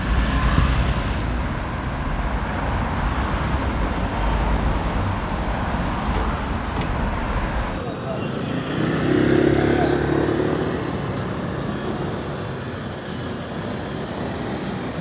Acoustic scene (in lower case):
street